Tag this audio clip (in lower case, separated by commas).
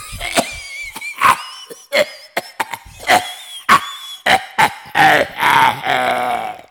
cough, respiratory sounds